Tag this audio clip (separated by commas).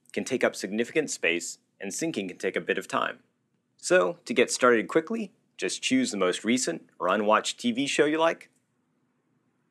Speech